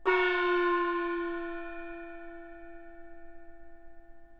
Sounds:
Musical instrument, Percussion, Gong, Music

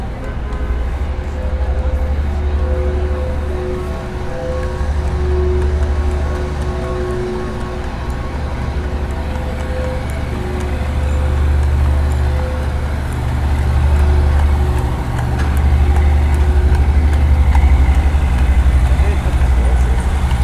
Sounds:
Truck, Vehicle, Motor vehicle (road)

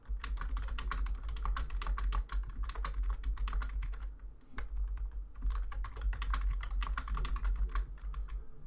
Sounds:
Domestic sounds, Computer keyboard, Typing

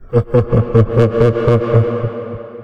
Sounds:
Human voice, Laughter

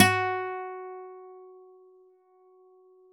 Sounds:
Music, Musical instrument, Guitar, Acoustic guitar, Plucked string instrument

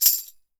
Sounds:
Tambourine, Percussion, Music, Musical instrument

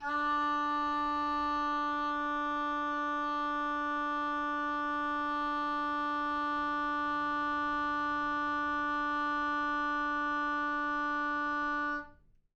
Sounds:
woodwind instrument, Music, Musical instrument

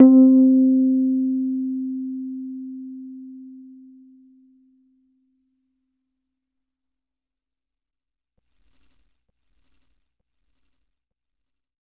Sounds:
Musical instrument, Piano, Music, Keyboard (musical)

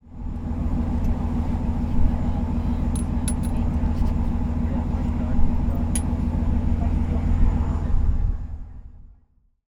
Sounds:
Water vehicle, Engine, Vehicle

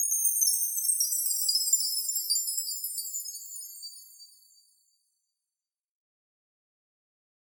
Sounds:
Chime, Bell

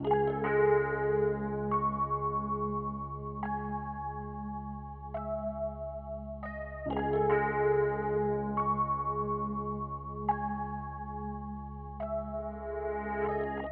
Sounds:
Musical instrument, Piano, Music, Keyboard (musical)

